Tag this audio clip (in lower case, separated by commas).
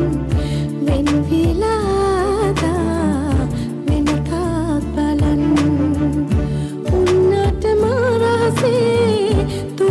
music